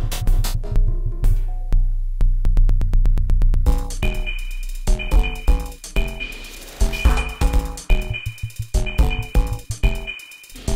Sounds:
Electronic music, Techno, Music

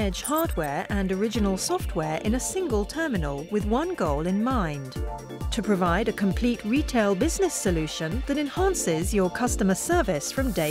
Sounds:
Music, Speech

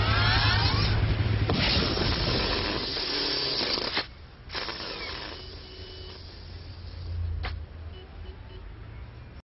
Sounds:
Vehicle

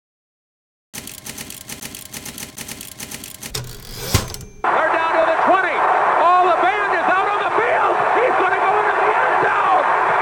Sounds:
Speech

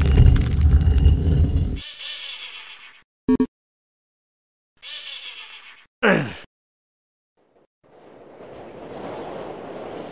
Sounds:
inside a large room or hall

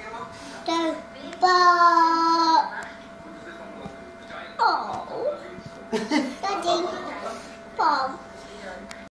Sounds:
Speech

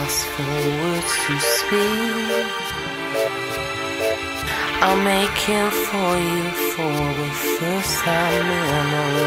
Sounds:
Electronic music, Music

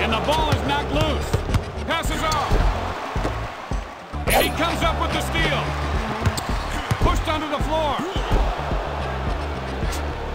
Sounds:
Music, Speech

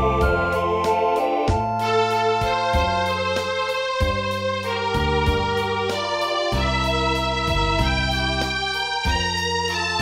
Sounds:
Music, fiddle, Musical instrument

